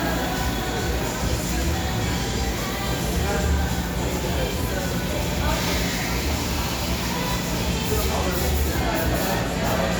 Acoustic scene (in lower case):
cafe